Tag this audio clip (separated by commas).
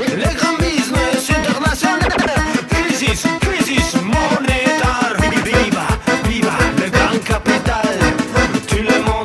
Music, Sound effect